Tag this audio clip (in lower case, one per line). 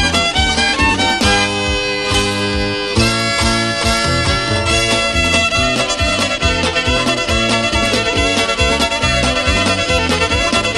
fiddle
bowed string instrument